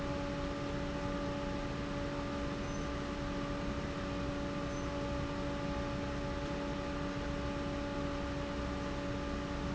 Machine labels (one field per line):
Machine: fan